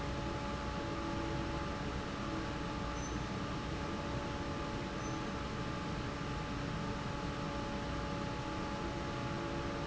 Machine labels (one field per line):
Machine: fan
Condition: normal